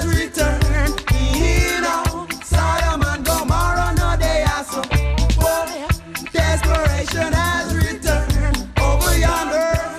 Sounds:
Music of Africa, Music

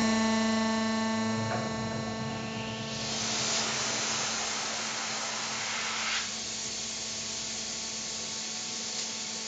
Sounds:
Tools

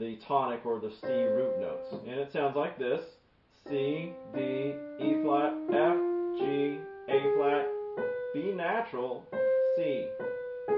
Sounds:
Musical instrument, Music, Classical music, Piano

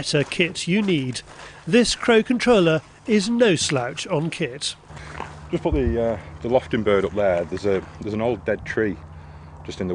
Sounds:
Speech

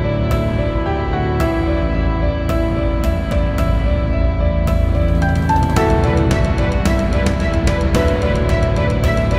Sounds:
Music

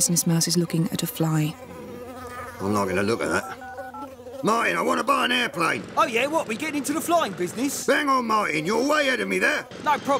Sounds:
Speech

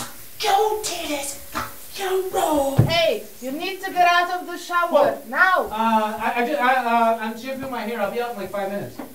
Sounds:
Speech, inside a small room

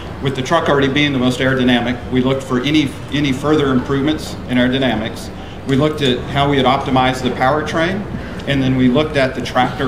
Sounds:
Speech

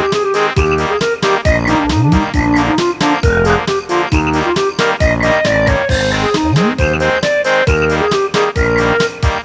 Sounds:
Music

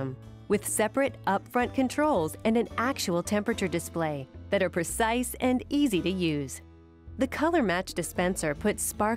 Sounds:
Speech

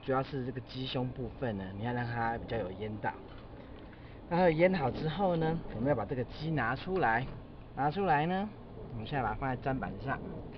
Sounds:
Speech

